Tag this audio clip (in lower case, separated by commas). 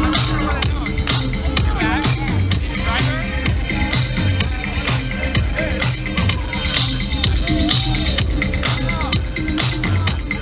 speech, music